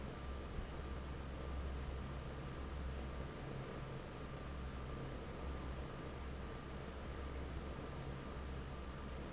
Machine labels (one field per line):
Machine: fan